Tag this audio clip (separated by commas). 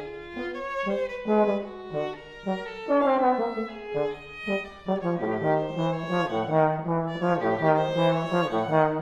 playing trombone